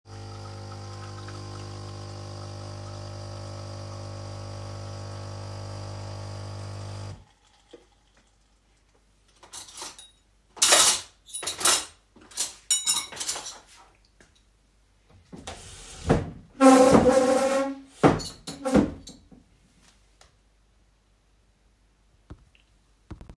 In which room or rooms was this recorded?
kitchen